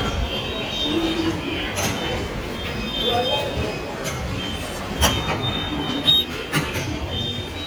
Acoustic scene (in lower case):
subway station